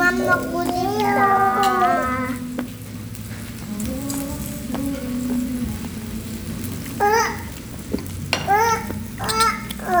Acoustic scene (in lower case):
restaurant